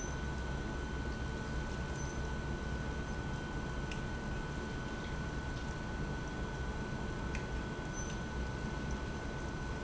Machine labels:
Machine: pump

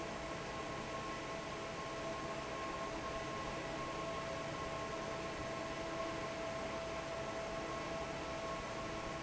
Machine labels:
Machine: fan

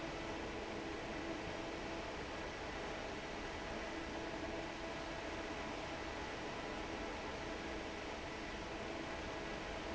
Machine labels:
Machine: fan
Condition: normal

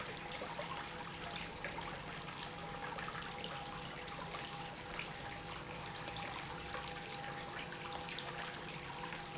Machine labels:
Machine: pump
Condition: normal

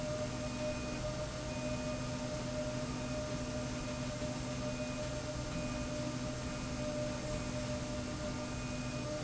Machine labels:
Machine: slide rail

